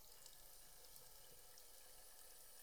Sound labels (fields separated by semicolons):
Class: water tap; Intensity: low